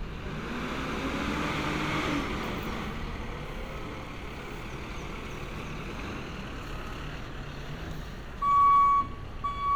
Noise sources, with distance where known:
reverse beeper, near

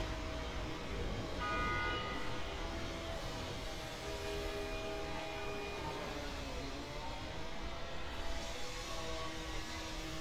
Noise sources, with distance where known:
unidentified powered saw, near; car horn, near

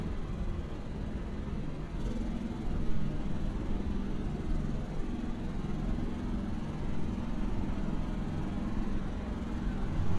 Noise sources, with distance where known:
small-sounding engine, near

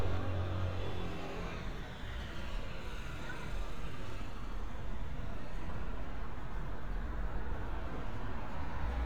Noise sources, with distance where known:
engine of unclear size

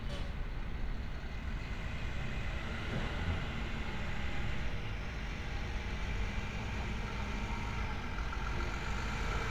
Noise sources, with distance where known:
large-sounding engine

